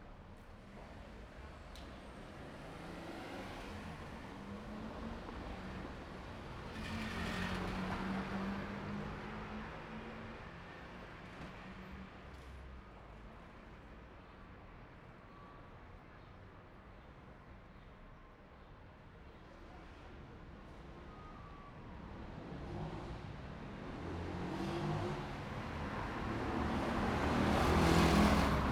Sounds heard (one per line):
car
people talking
car wheels rolling
car engine accelerating
motorcycle engine accelerating
motorcycle